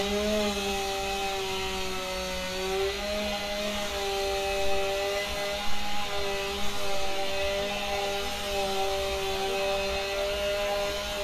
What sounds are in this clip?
unidentified powered saw